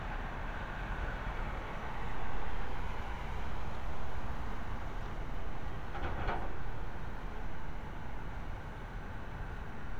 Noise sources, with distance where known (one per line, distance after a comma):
engine of unclear size, near